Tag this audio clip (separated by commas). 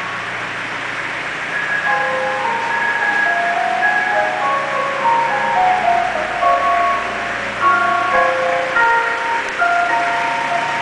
ice cream van